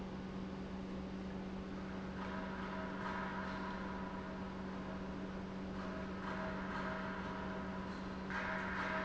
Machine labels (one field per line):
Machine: pump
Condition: normal